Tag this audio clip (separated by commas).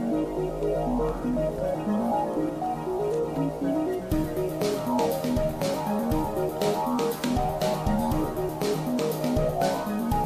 Music